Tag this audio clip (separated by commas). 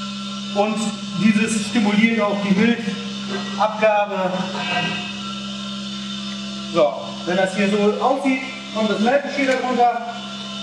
Speech